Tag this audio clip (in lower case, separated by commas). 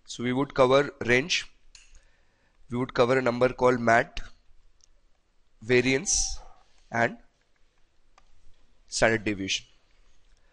speech